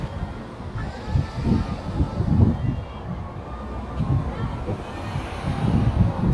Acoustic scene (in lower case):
residential area